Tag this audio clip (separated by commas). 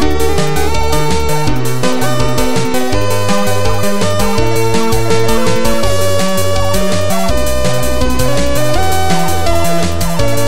Music